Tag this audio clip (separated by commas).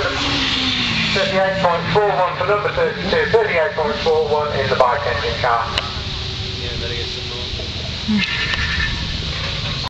Speech, Car, Motor vehicle (road), Vehicle, Skidding